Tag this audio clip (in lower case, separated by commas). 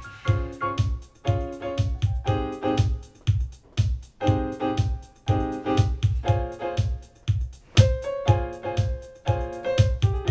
music, house music